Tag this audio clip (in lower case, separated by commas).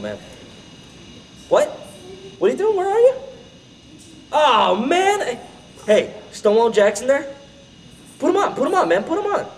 speech